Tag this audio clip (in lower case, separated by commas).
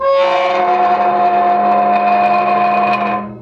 squeak